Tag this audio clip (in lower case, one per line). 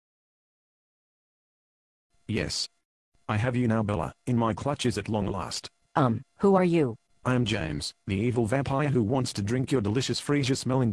speech